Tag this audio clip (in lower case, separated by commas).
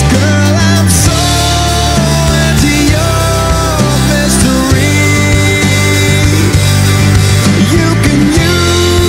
music, grunge